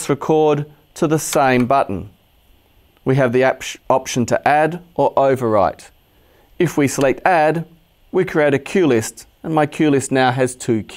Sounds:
speech

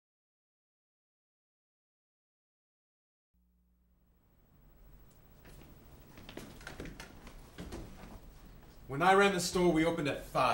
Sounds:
speech

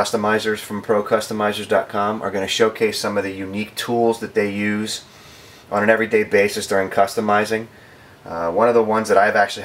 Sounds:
speech

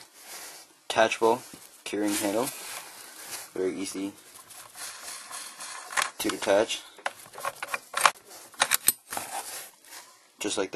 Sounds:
speech

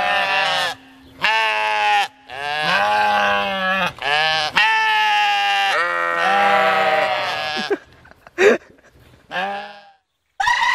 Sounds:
sheep bleating

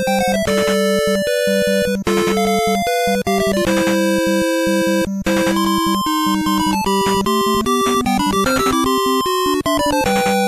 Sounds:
video game music

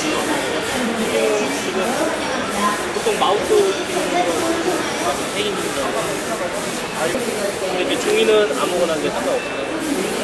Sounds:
speech

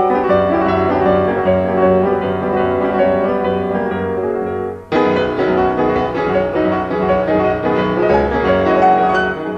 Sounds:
music

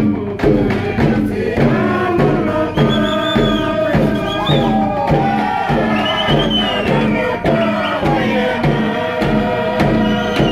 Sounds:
music

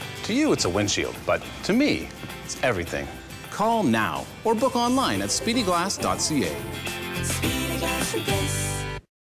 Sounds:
speech
music

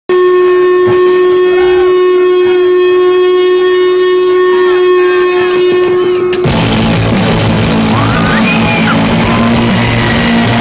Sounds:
music
rock music
musical instrument

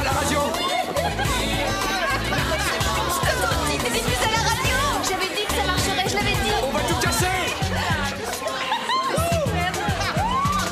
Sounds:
music
speech

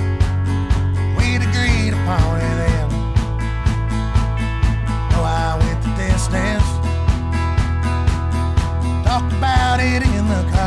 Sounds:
music

